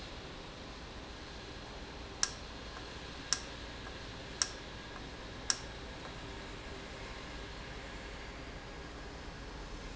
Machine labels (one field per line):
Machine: valve